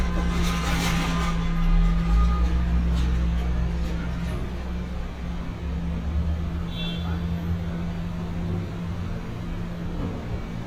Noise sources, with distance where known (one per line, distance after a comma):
large-sounding engine, near
non-machinery impact, near
car horn